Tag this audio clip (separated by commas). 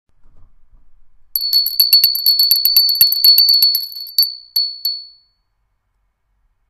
Bell